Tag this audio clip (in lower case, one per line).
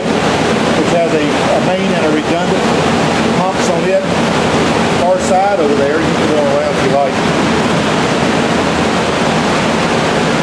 inside a large room or hall
speech